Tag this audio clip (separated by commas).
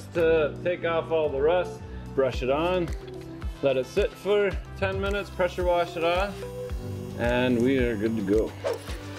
arc welding